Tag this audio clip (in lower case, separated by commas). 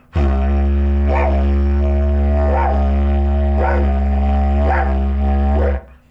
musical instrument, music